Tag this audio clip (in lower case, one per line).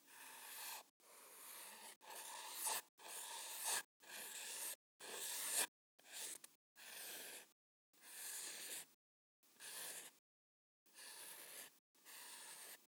writing
home sounds